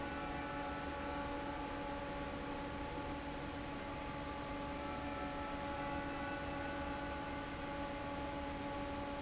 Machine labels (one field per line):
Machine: fan